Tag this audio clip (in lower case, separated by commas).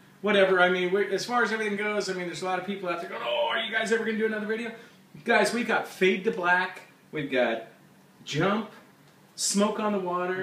speech